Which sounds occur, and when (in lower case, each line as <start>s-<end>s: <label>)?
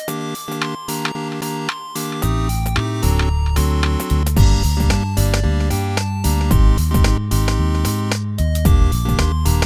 0.0s-9.6s: music
0.0s-9.6s: video game sound
0.6s-0.6s: tick
1.0s-1.1s: tick
1.6s-1.7s: tick
2.7s-2.8s: tick
3.2s-3.2s: tick
3.8s-3.9s: tick
4.9s-4.9s: tick
5.3s-5.4s: tick
5.9s-6.0s: tick
7.0s-7.1s: tick
7.4s-7.5s: tick
8.1s-8.2s: tick
9.2s-9.2s: tick
9.6s-9.6s: tick